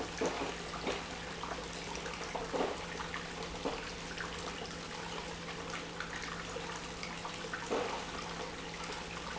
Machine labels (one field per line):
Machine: pump